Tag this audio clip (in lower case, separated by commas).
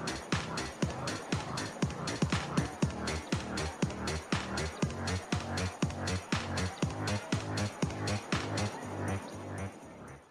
music